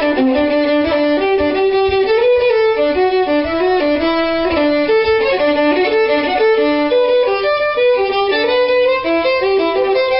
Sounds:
musical instrument, fiddle, music

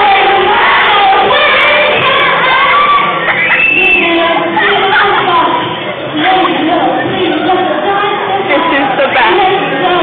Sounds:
speech, inside a large room or hall, singing

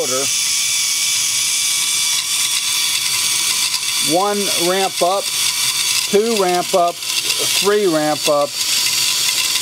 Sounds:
gears, mechanisms, pawl

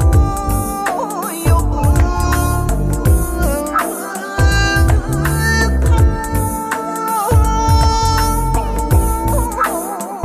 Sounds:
middle eastern music, music

